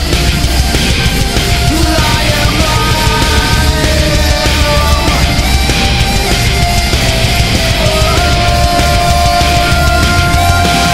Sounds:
angry music
music

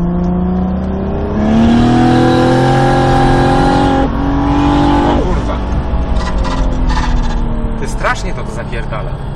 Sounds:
speech

